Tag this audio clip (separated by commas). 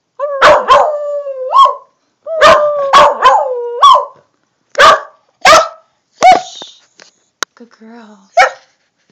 pets, Dog, Speech, canids, Animal